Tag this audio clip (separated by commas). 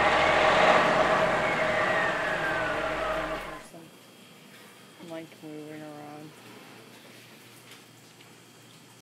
Speech